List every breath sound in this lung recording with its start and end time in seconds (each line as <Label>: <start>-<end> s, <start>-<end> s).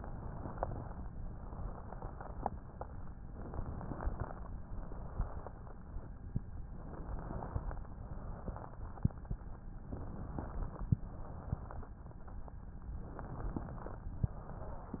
Inhalation: 0.00-1.01 s, 3.43-4.44 s, 6.89-7.89 s, 9.87-10.87 s, 13.07-14.08 s
Exhalation: 1.29-2.86 s, 4.65-5.89 s, 8.06-9.31 s, 11.10-12.12 s, 14.23-15.00 s